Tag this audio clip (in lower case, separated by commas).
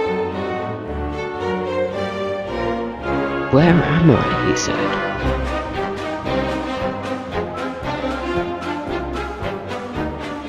music, speech